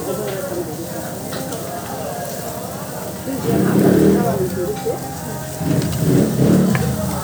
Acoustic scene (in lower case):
restaurant